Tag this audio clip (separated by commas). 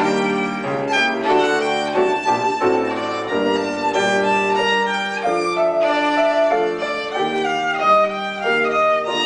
fiddle, Music, Musical instrument